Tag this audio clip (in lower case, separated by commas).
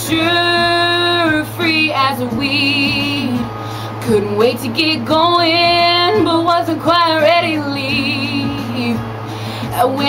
female singing, music